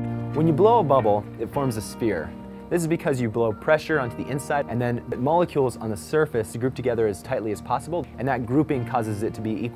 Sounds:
Music, Speech

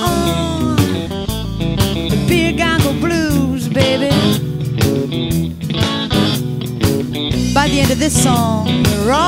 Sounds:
Blues, Rhythm and blues, Music

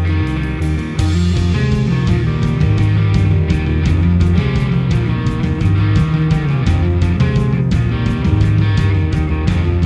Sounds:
Music, Progressive rock

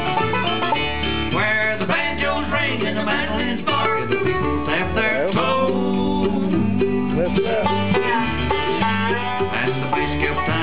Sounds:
Banjo, Song, Music, Guitar, Bluegrass, Country, Musical instrument

